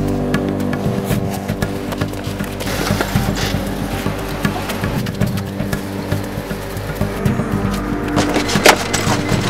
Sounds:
music, outside, urban or man-made

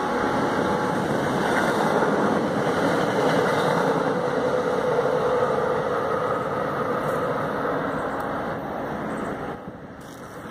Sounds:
outside, urban or man-made

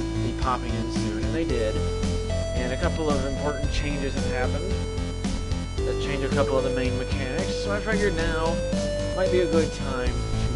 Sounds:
speech, music

